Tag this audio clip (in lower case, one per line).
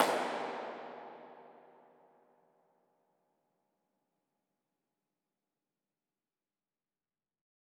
hands
clapping